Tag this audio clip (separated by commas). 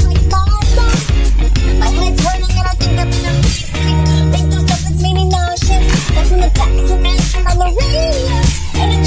Music